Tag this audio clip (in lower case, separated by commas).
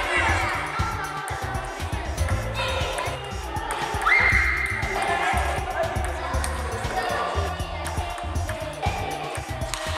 playing table tennis